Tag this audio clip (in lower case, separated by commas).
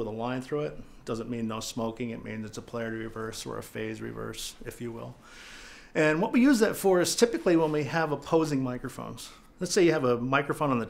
speech